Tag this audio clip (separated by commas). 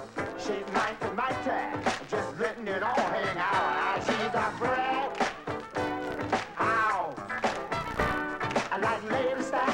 Song